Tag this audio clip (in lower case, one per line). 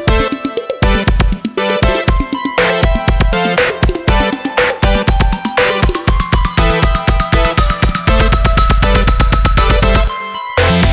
playing synthesizer